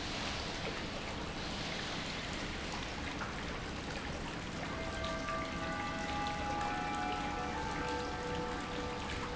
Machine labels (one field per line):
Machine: pump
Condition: normal